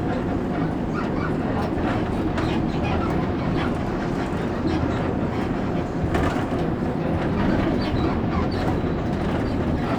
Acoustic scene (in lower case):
bus